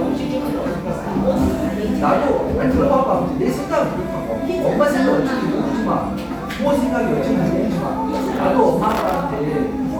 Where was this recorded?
in a cafe